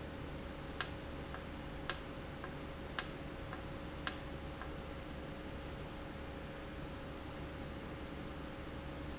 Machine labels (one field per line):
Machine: valve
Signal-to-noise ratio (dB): 0 dB